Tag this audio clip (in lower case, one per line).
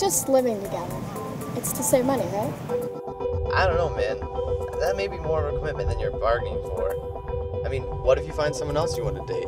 music
speech